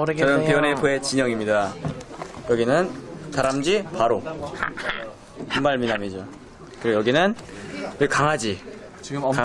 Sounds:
speech

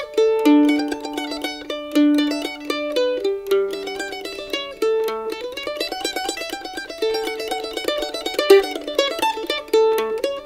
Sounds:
mandolin
music

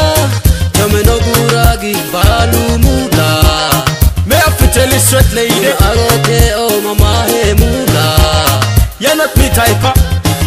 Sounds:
music
middle eastern music

